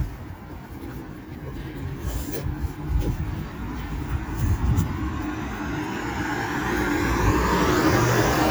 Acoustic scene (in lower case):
street